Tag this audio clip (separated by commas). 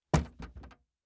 Knock, home sounds, Door